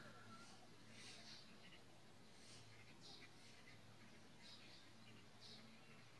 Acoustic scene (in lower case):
park